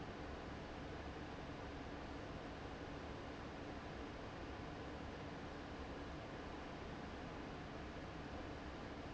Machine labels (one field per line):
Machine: fan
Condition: abnormal